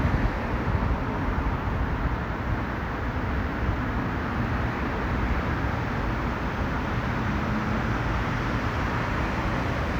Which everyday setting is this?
street